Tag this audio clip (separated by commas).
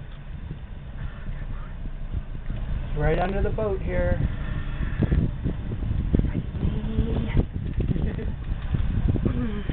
Speech